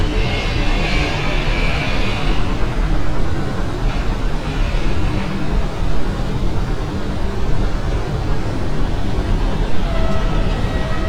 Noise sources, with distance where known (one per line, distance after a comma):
unidentified alert signal